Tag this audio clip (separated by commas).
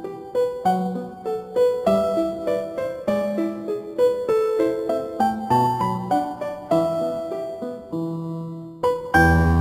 Background music, Music